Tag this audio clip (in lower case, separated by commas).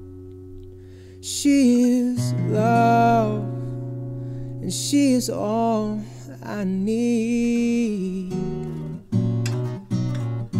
plucked string instrument, song, guitar, acoustic guitar, musical instrument, music